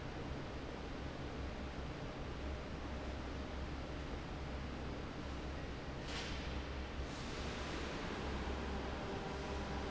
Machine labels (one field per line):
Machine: fan